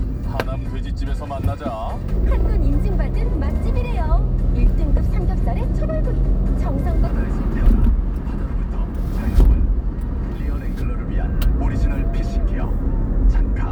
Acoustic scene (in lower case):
car